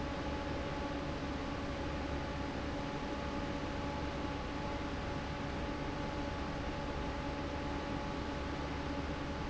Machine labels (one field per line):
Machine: fan